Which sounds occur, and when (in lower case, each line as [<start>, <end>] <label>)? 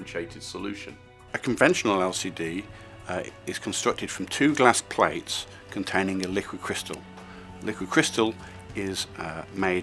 [0.01, 9.82] music
[0.04, 0.88] man speaking
[1.63, 2.62] man speaking
[3.11, 5.36] man speaking
[5.74, 6.93] man speaking
[7.52, 8.26] man speaking
[8.69, 9.82] man speaking